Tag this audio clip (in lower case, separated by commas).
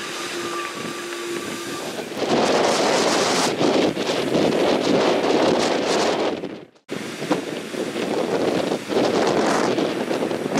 wind noise (microphone), wind noise